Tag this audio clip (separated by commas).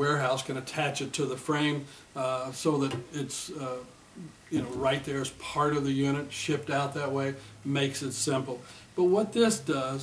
Speech